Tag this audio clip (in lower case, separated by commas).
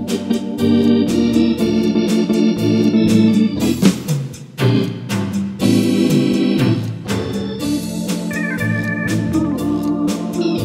organ, electronic organ